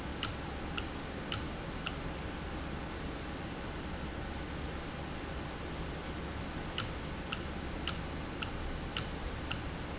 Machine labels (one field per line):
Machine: valve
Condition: normal